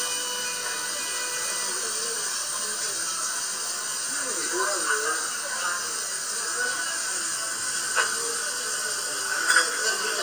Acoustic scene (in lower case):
restaurant